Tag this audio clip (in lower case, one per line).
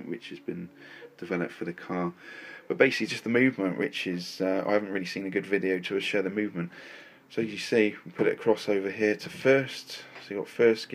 speech